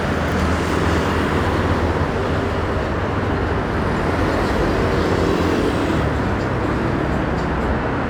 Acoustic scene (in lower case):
street